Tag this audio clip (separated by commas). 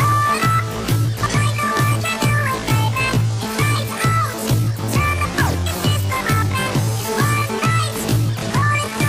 Music